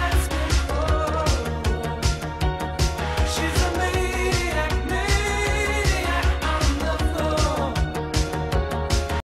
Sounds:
Music

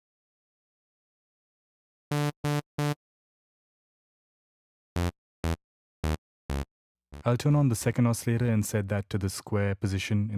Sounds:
Music, Speech, Dubstep

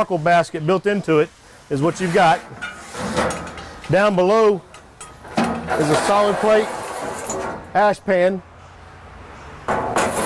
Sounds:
Speech, outside, urban or man-made

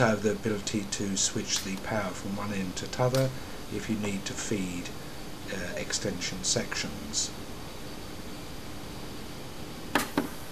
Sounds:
inside a small room, Speech

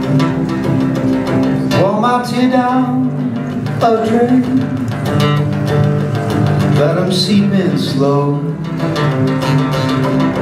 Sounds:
Music

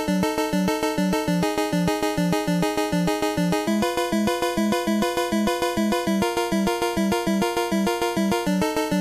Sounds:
Music, Video game music

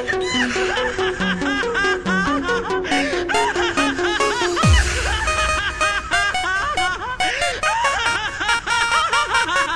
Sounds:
Snicker, Baby laughter, people sniggering, Music

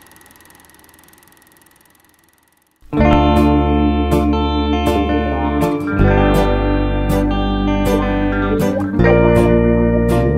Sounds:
Guitar, Music, Plucked string instrument

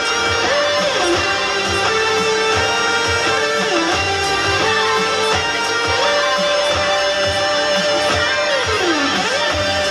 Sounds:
Music, Plucked string instrument, Electric guitar, playing electric guitar, Guitar, Musical instrument

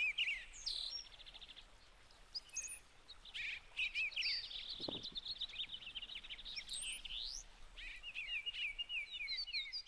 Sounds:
baltimore oriole calling

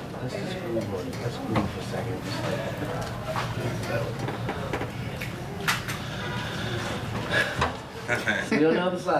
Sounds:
Speech

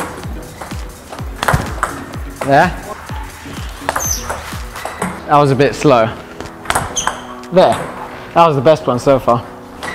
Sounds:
playing table tennis

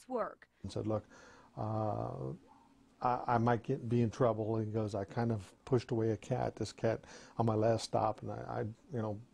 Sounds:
Speech

